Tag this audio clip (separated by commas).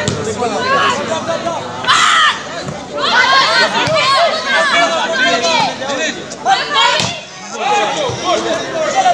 playing volleyball